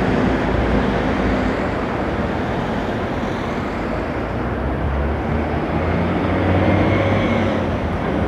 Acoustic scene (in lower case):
street